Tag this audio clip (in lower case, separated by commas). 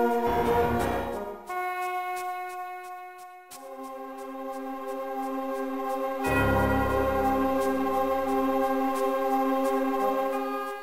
music